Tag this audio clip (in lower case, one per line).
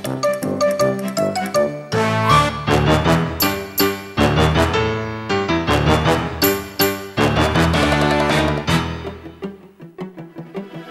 music